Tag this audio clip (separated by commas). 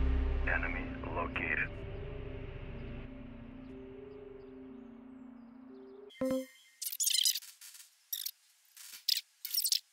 Music, Speech, outside, urban or man-made